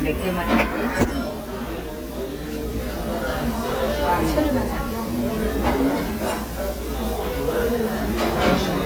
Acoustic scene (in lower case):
restaurant